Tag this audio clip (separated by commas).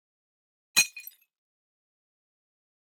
Shatter, Glass